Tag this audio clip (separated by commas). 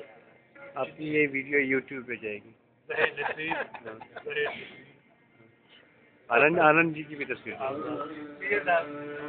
Speech